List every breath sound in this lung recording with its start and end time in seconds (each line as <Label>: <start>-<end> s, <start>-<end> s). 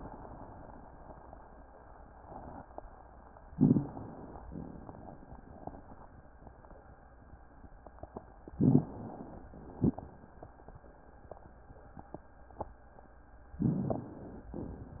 Inhalation: 3.51-4.42 s, 8.61-9.52 s, 13.59-14.50 s
Exhalation: 4.44-5.82 s, 9.54-10.92 s, 14.54-15.00 s
Crackles: 3.51-3.93 s, 8.53-8.88 s, 13.59-13.94 s